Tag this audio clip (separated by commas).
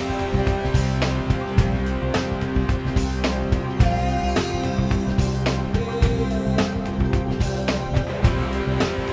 Music